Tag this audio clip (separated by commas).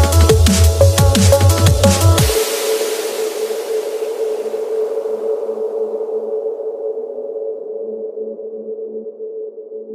Electronic music, Drum and bass, Music